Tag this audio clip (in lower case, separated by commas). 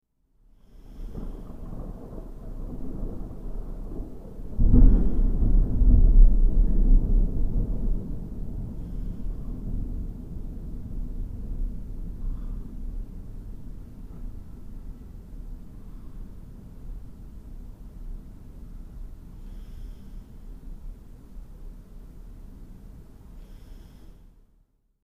thunderstorm, thunder